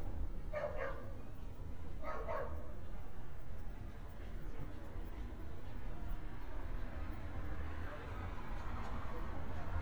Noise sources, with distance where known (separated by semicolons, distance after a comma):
dog barking or whining, near